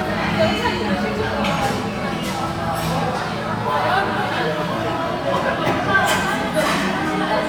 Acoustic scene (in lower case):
restaurant